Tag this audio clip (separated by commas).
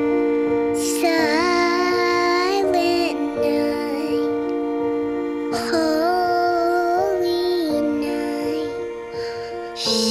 child singing